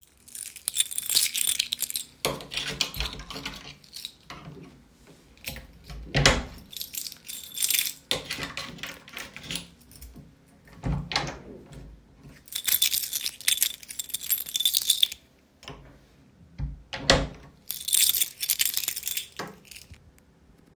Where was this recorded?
kitchen